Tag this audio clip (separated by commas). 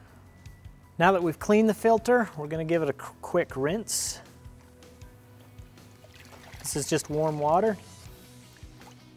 Music, Speech